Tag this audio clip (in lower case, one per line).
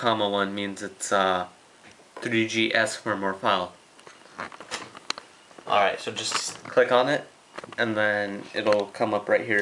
inside a small room
speech